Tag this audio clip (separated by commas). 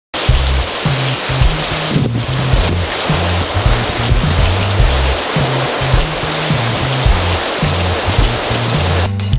Pink noise, Waterfall